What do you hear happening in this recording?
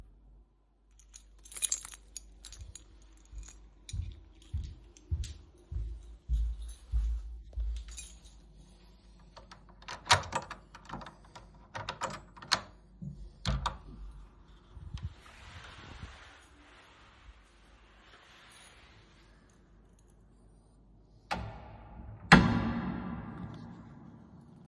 I grabbed my keys from my table and jingled them in my hand and pocket.I walked towards the door.I unlocked the door and stepped outside and I closed the door.